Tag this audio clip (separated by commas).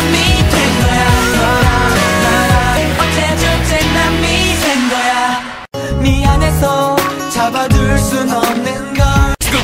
Male singing, Music